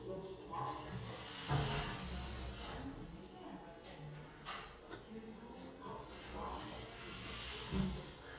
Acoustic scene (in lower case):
elevator